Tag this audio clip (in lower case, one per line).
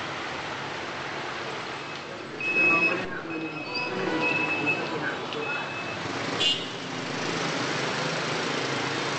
walk